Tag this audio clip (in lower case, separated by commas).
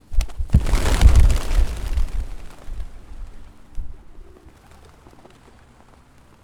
wild animals, bird, animal